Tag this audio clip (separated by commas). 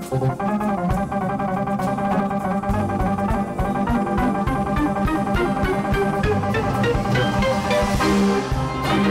Drum, Percussion, Drum kit, Music, Steelpan, Musical instrument